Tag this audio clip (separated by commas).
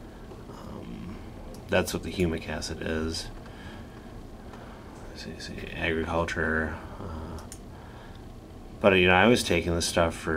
Speech